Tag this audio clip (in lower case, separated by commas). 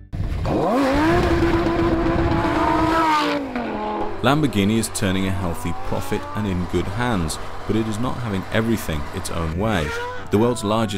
auto racing, car, vehicle, speech